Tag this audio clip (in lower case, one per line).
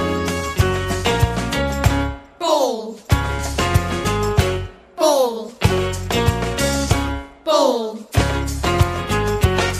music